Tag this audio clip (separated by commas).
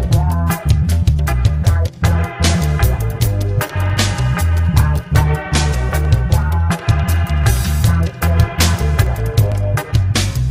Music